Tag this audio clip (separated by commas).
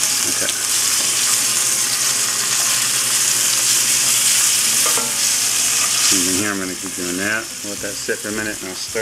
Speech, inside a small room